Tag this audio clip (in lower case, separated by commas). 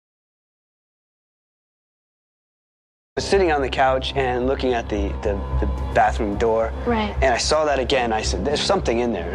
music, speech